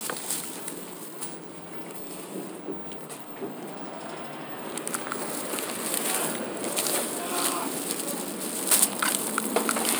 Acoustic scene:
bus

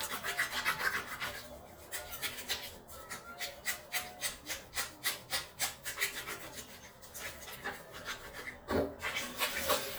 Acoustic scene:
restroom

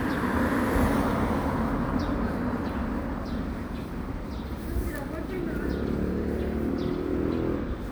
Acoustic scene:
residential area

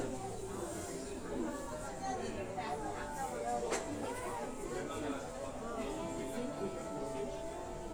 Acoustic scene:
crowded indoor space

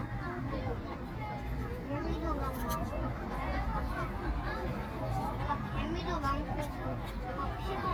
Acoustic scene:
park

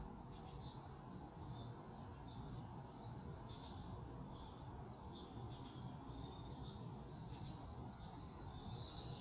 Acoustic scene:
park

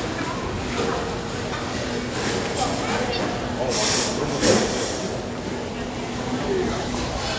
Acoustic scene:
crowded indoor space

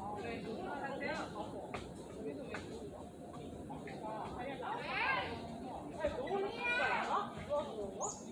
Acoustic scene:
park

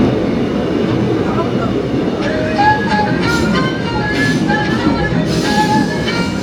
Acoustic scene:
subway train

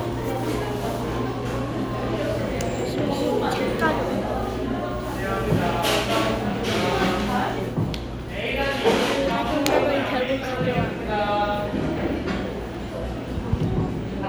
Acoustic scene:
cafe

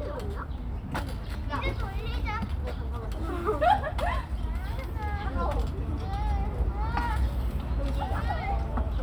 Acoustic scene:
park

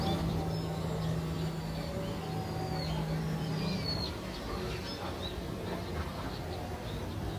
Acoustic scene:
residential area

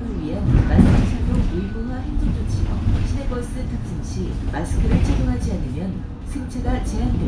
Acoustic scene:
bus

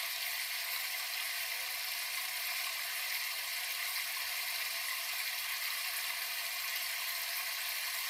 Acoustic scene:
restroom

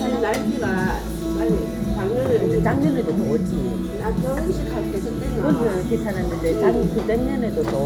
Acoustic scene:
restaurant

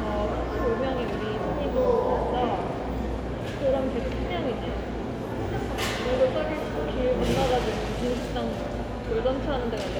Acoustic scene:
crowded indoor space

